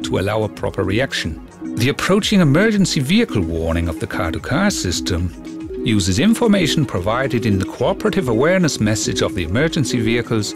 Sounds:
music, speech

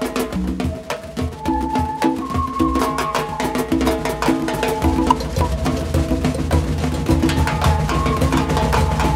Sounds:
music, percussion

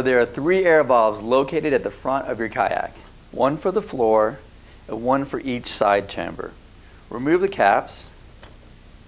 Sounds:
speech

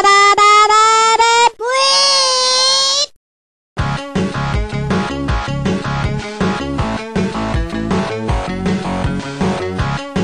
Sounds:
music

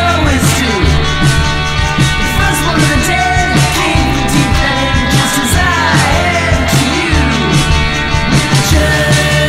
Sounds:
music

